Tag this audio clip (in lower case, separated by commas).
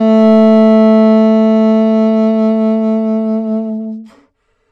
music, wind instrument, musical instrument